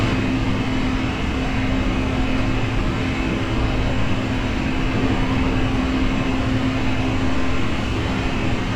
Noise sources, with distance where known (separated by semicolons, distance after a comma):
rock drill